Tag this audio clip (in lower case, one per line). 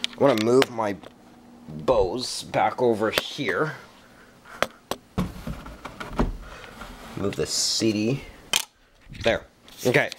speech